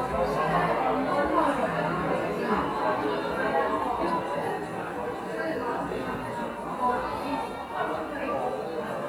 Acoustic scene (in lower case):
cafe